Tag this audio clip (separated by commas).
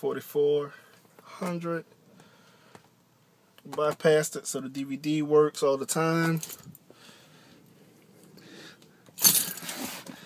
Speech